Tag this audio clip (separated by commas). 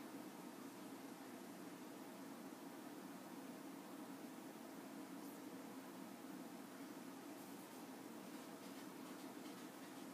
inside a small room